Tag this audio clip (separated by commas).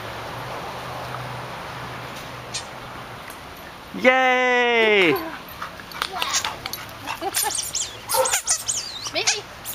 pets, Animal, Dog, Speech, Bow-wow